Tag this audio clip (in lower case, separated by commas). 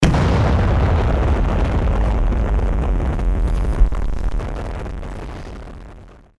explosion